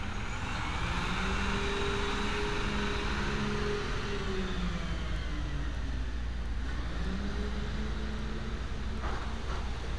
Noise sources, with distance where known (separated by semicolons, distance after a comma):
large-sounding engine, near